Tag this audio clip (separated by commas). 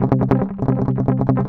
Plucked string instrument, Musical instrument, Guitar, Music, Strum